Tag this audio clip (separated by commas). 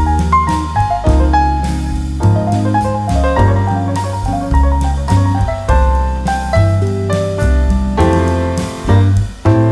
Music